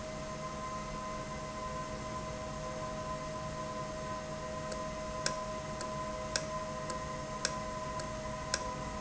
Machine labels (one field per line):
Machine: valve